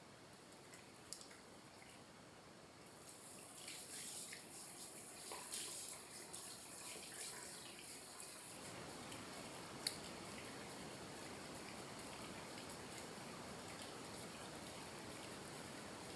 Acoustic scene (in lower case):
restroom